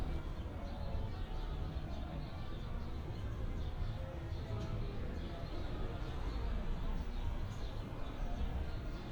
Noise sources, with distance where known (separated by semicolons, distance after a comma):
music from an unclear source